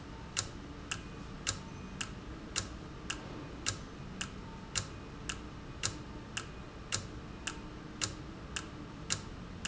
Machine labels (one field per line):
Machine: valve